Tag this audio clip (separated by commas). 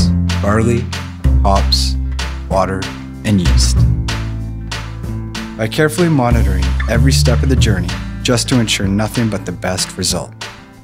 Speech, Music